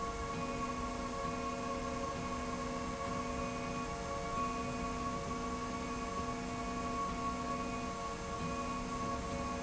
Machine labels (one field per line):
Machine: slide rail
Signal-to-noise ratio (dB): -6 dB